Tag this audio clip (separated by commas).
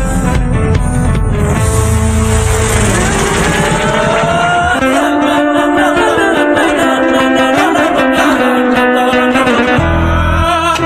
Music